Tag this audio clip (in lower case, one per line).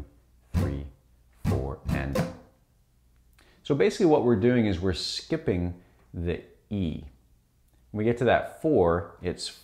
musical instrument
plucked string instrument
music
strum
guitar
speech
acoustic guitar